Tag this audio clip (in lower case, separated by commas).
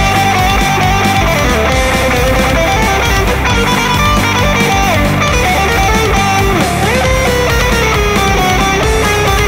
music